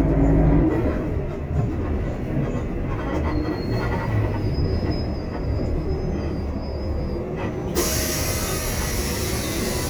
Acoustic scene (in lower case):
bus